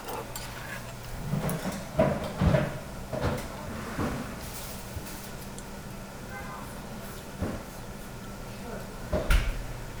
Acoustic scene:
restaurant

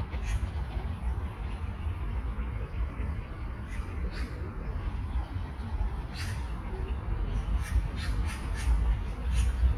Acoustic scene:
park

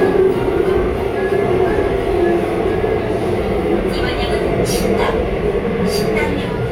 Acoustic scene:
subway train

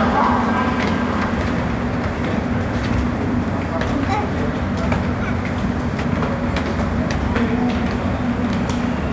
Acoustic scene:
subway station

